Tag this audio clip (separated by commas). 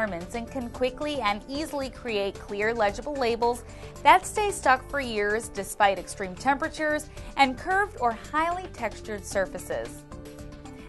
Music, Speech